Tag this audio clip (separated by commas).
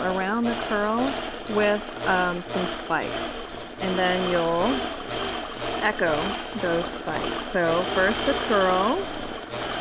Speech